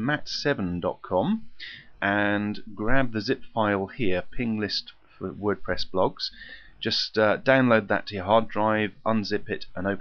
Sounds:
Speech

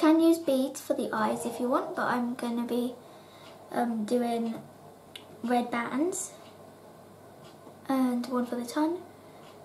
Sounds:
Speech

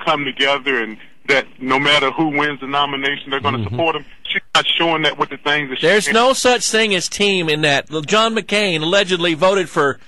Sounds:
Speech

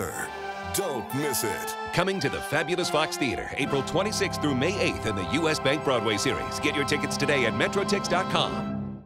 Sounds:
Music, Speech

